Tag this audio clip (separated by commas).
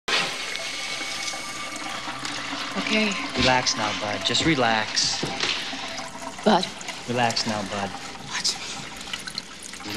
Water